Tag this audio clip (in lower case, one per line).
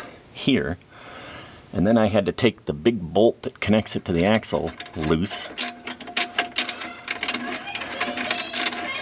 speech